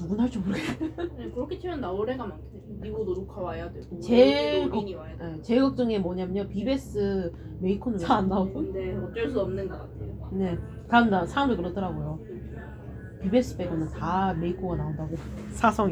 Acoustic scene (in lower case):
cafe